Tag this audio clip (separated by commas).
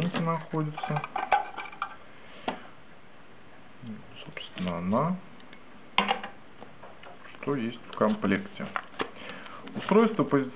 Speech